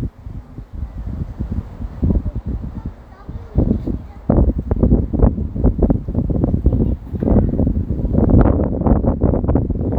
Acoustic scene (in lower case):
residential area